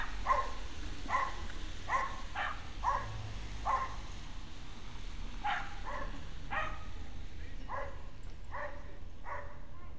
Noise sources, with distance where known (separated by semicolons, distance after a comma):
dog barking or whining, far